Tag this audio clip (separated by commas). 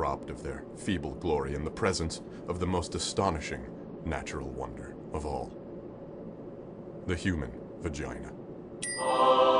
Music, Speech